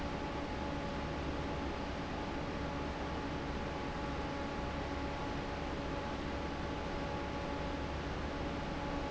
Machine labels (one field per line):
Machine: fan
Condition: normal